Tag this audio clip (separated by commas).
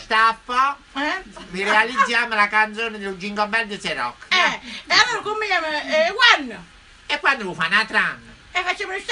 Speech